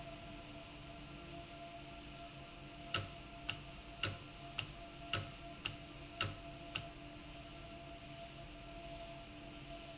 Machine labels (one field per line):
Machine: valve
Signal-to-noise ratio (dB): 6 dB